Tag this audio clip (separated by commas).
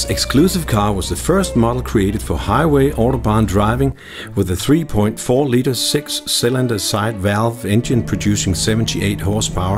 Music, Speech